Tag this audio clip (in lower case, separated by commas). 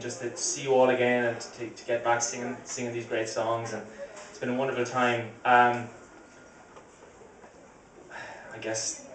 speech